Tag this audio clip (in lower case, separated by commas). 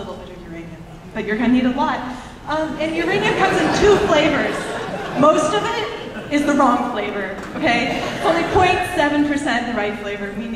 speech